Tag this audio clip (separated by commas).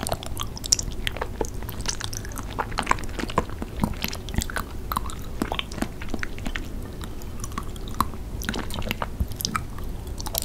people eating noodle